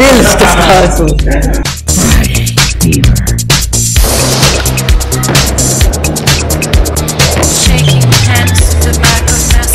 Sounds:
speech, skateboard, music

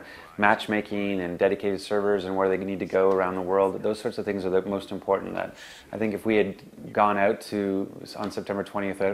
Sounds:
speech

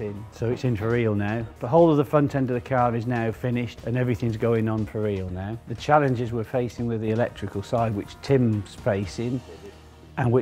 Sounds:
speech, music

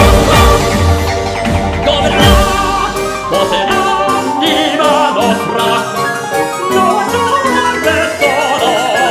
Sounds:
opera, music

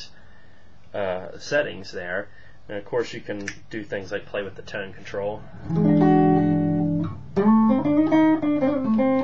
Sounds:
music, inside a small room, speech, guitar, musical instrument, plucked string instrument

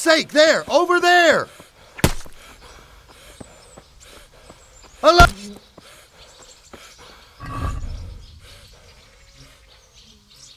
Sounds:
outside, rural or natural, speech

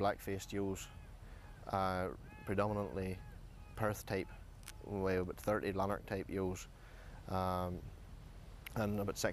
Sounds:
speech

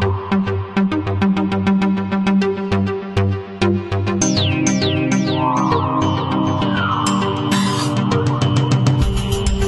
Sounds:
music, electronica

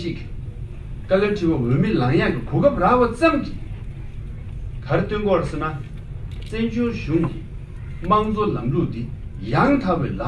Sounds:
monologue, speech, man speaking

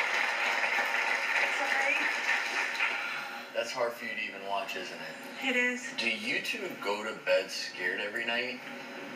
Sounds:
television

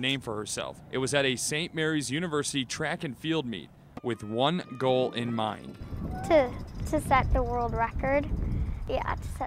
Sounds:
speech

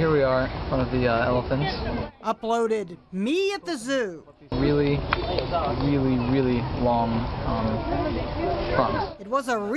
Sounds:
outside, urban or man-made, speech

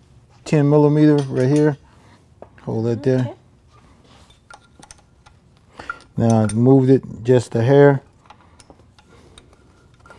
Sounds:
inside a small room, speech

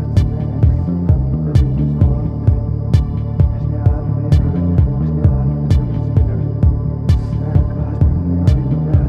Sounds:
music

